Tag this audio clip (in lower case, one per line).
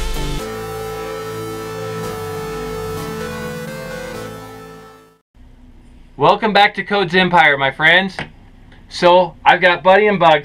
speech
music